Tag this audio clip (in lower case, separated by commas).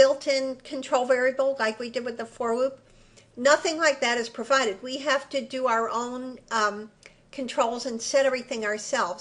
monologue